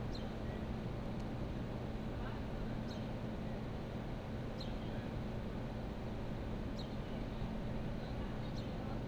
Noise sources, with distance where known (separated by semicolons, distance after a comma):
engine of unclear size, far; person or small group talking, far